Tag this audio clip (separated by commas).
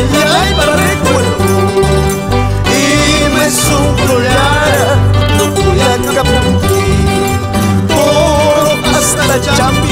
Music